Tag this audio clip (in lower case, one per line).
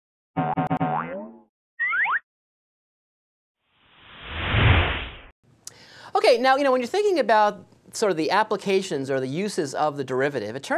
speech
inside a small room